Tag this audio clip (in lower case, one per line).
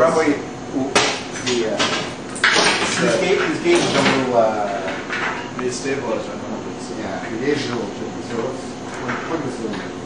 speech